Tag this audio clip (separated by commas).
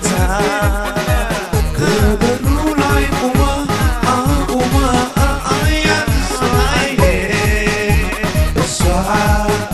Music, Dance music